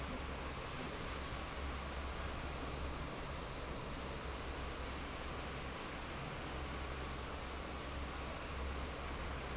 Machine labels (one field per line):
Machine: fan